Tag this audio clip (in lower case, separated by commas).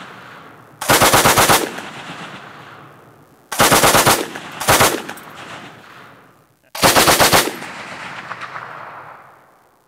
machine gun shooting